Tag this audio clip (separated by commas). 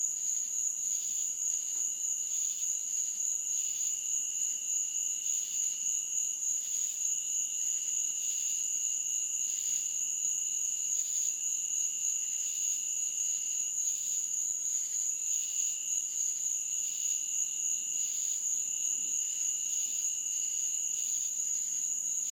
Cricket, Frog, Animal, Wild animals, Insect